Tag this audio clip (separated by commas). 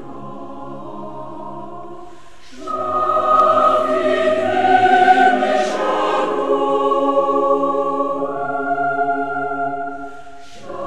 Music, Christmas music